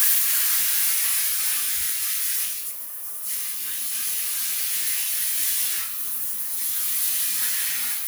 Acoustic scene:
restroom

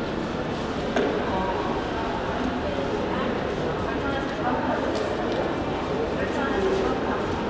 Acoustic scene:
crowded indoor space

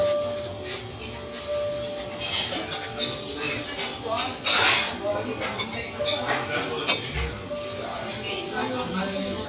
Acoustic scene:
restaurant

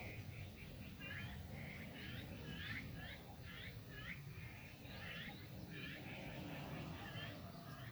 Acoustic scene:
park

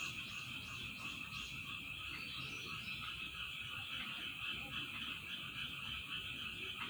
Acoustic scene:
park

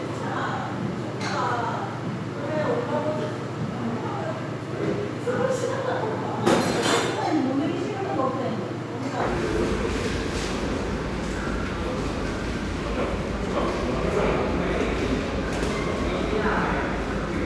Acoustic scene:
crowded indoor space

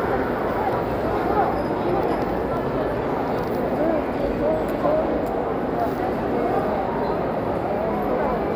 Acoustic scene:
crowded indoor space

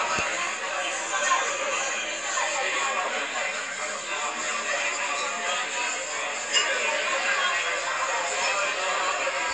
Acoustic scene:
crowded indoor space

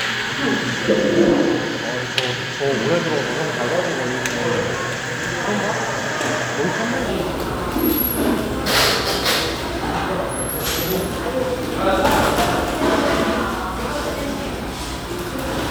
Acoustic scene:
cafe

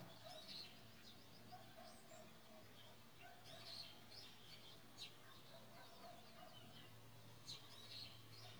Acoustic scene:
park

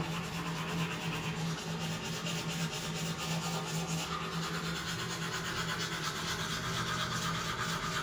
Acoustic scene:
restroom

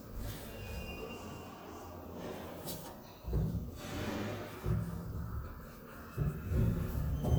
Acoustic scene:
elevator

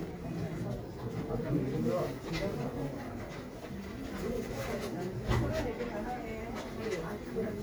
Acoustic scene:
crowded indoor space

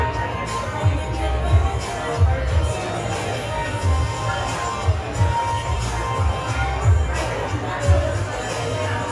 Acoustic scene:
cafe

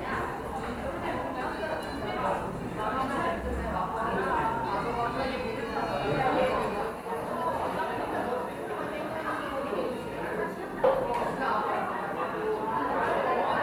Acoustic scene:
cafe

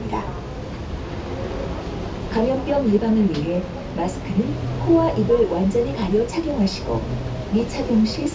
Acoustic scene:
bus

